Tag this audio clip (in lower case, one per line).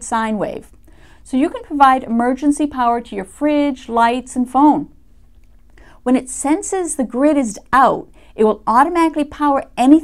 speech